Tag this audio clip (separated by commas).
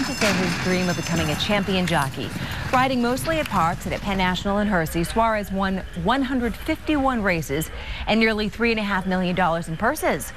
Clip-clop, Speech